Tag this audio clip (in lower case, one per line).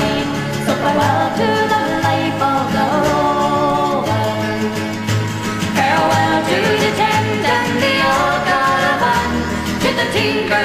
folk music
music